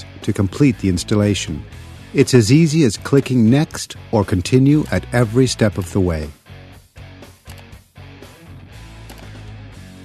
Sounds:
Music, Speech

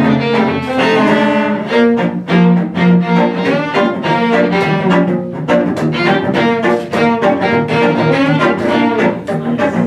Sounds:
Violin, Bowed string instrument, Cello, Double bass

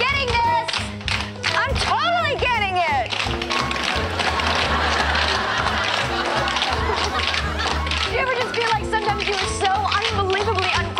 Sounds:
tap dancing

